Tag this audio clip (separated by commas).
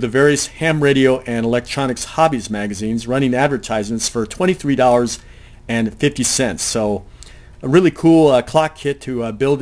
Speech